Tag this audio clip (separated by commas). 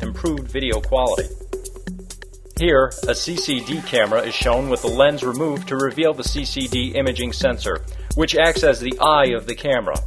Music, Speech